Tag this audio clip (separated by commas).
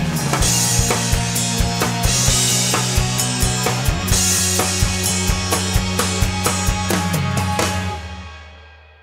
Music